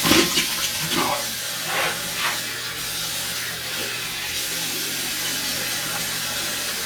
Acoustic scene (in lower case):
restroom